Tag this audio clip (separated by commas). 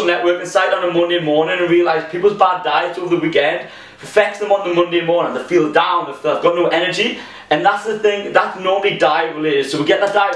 Speech